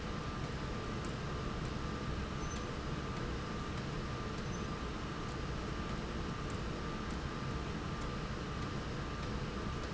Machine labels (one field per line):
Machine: slide rail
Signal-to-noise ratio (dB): -6 dB